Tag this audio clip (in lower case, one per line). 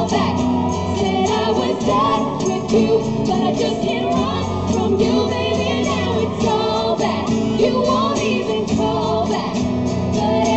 inside a large room or hall
singing
music